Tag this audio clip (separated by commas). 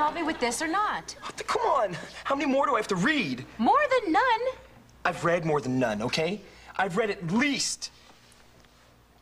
Speech